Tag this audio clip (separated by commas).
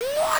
Human voice, Shout